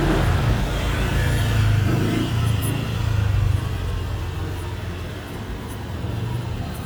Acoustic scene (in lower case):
residential area